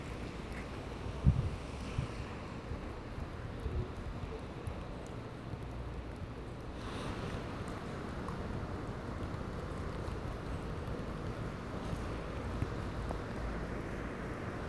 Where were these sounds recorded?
in a residential area